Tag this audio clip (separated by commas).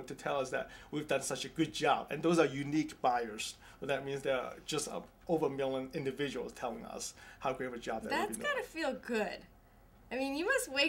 Speech